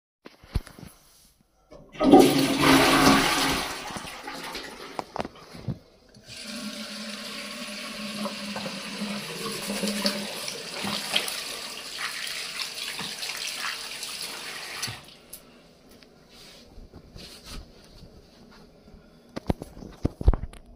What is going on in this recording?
I flushed the toilet then let the water run to wash my hands